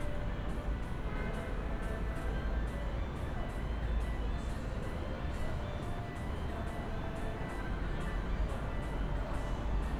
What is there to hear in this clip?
music from a fixed source